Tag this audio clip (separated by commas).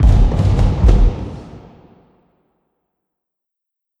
Explosion, Fireworks